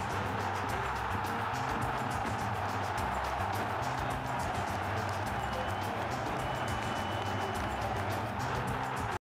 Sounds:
music

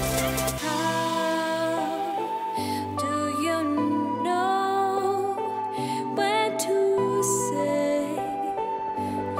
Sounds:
music

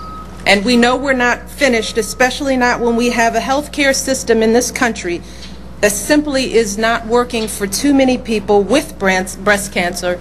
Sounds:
speech
monologue
female speech

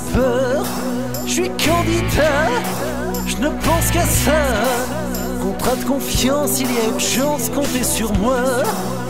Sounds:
music

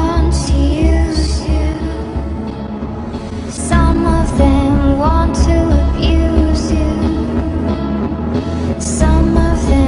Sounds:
music
independent music

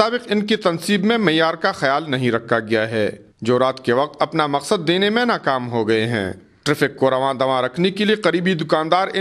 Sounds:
speech

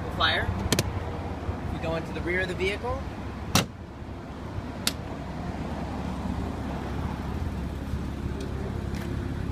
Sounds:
speech

